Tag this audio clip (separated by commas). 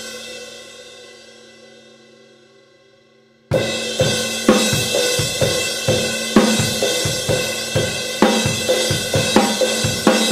Cymbal, playing cymbal